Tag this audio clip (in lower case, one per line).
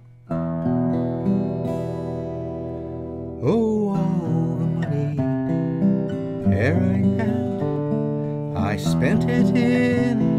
musical instrument
music
guitar
plucked string instrument
acoustic guitar
strum